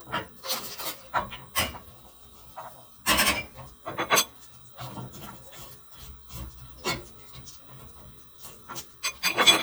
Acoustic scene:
kitchen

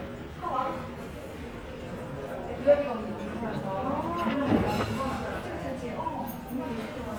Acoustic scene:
restaurant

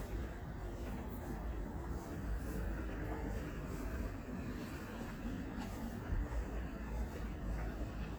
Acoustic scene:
street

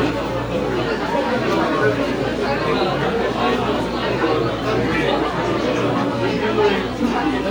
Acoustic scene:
crowded indoor space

